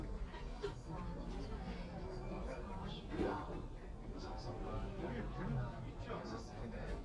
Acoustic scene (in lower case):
crowded indoor space